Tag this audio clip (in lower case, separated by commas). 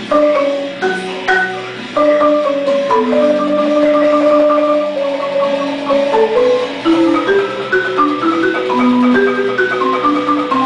glockenspiel, marimba, playing marimba, mallet percussion